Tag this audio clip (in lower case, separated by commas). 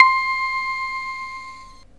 keyboard (musical), music, musical instrument